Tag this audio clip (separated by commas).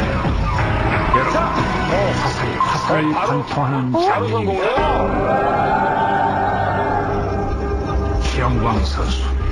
Speech, Music